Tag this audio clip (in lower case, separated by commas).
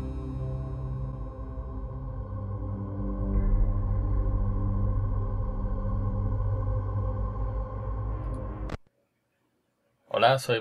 speech, music